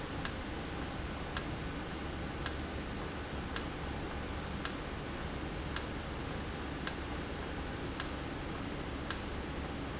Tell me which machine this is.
valve